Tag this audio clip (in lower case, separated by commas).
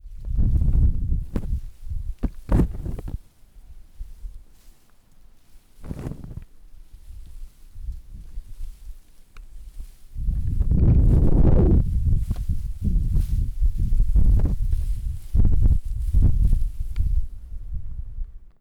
wind